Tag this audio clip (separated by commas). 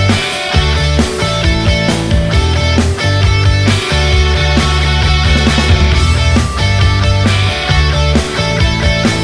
Music